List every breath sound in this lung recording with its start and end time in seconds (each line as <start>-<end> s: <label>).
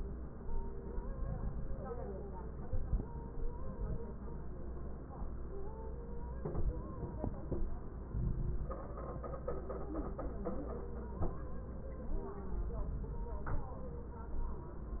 1.10-1.74 s: inhalation
1.10-1.74 s: crackles
2.67-3.31 s: inhalation
2.67-3.31 s: crackles
3.34-3.98 s: exhalation
8.12-8.82 s: inhalation
8.12-8.82 s: crackles